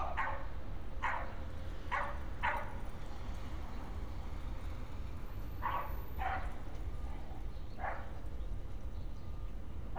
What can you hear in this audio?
dog barking or whining